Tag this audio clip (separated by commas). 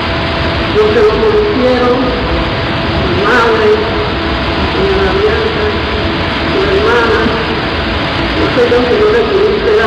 Speech